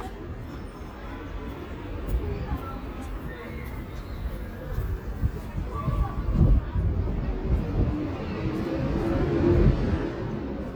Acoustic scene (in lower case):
residential area